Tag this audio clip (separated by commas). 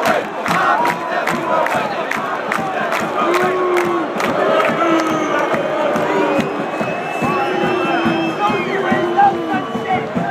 Speech, Music